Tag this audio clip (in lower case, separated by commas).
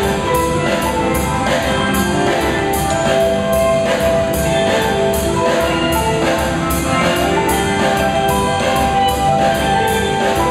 tubular bells, percussion, music